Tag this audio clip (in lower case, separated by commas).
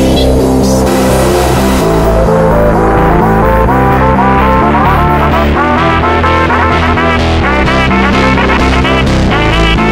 music, electronic music, electronic dance music, house music